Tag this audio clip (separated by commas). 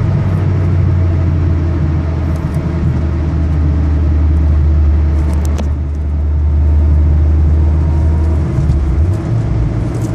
Vehicle, Car